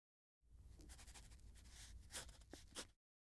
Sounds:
writing, home sounds

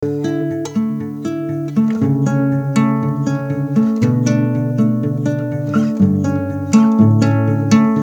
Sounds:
plucked string instrument, guitar, music, musical instrument, acoustic guitar

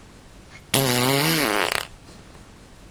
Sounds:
fart

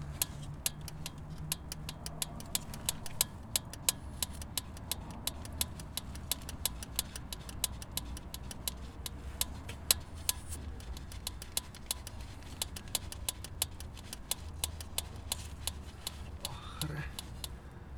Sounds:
vehicle

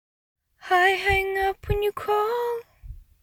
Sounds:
human voice, female singing, singing

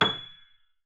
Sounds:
musical instrument, music, keyboard (musical), piano

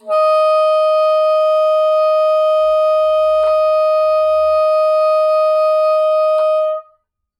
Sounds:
woodwind instrument, music, musical instrument

